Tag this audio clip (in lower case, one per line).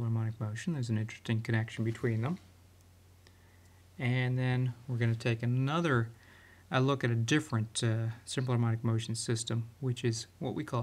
speech